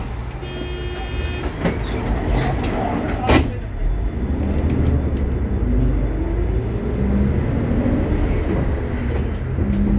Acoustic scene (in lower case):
bus